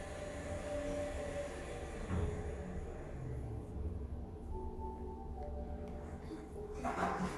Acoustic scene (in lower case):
elevator